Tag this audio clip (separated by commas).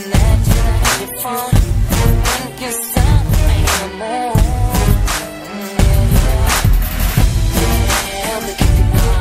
Music, Rhythm and blues